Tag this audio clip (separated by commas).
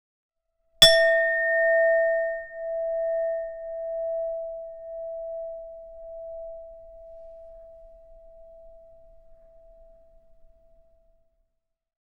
Glass, Chink